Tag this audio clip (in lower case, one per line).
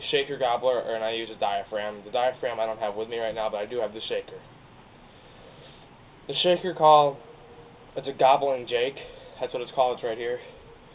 speech